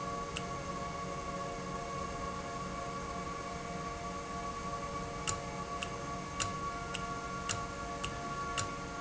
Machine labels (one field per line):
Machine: valve